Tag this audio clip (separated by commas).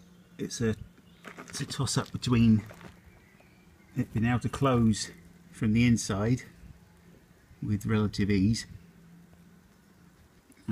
Speech